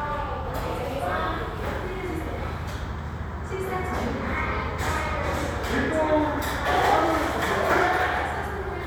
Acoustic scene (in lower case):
restaurant